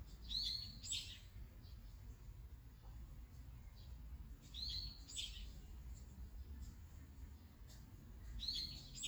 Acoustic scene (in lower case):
park